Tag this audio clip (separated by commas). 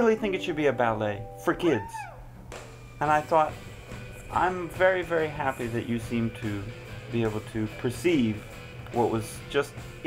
Music